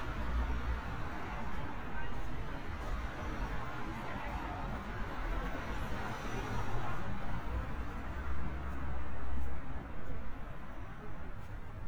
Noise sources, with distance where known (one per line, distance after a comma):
engine of unclear size